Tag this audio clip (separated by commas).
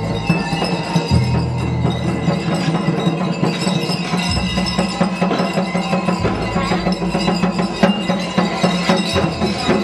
Music